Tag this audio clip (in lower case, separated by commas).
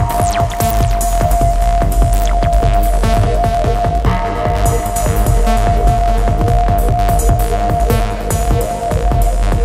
music, techno, electronic music